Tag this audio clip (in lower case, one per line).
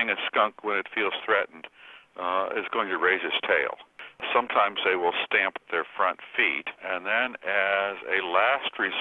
speech